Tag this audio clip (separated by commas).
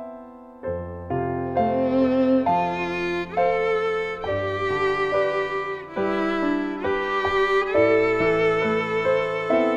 Violin, Music, Musical instrument